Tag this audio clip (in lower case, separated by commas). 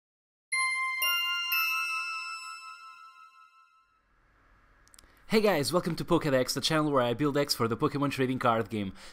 speech, music